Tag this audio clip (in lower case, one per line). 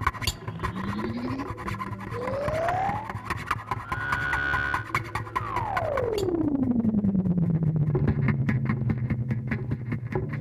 inside a small room